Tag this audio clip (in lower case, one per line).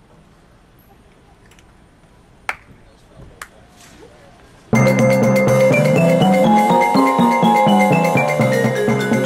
timpani
speech
music